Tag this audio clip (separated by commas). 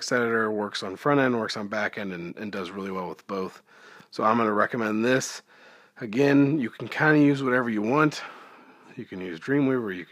Speech